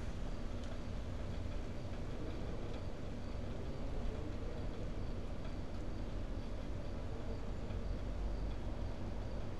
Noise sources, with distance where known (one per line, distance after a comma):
background noise